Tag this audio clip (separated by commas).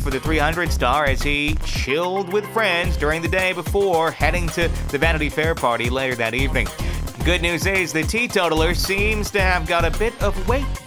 Speech, Music